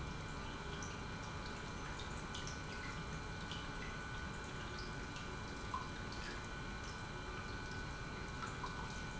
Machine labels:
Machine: pump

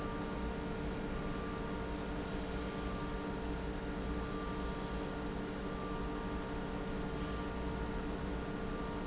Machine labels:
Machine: pump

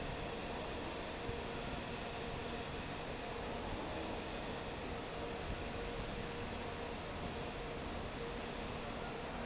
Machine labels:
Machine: fan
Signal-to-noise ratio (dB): 0 dB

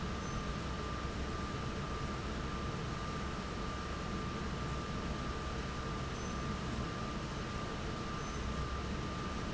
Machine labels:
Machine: fan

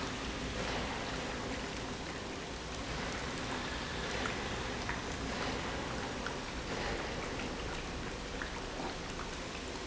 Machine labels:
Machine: pump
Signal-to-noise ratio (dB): -6 dB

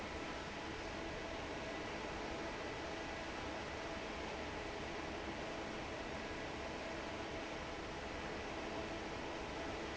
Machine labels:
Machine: fan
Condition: normal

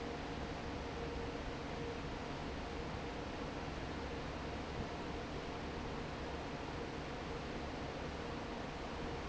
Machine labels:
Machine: fan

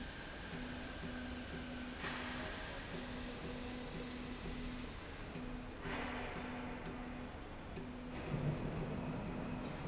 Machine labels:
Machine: slide rail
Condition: normal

